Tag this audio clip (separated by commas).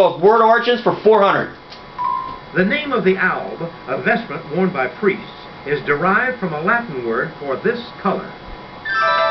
Speech, Music